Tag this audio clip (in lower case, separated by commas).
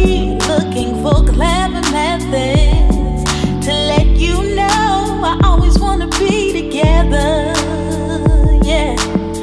background music, music